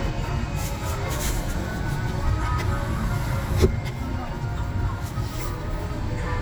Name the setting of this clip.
car